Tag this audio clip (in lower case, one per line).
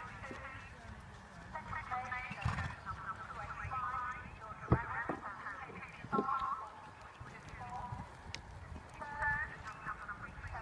speech
animal
clip-clop